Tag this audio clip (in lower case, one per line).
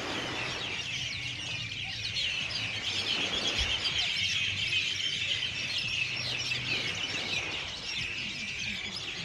mynah bird singing